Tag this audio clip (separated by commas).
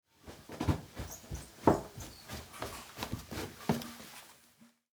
Run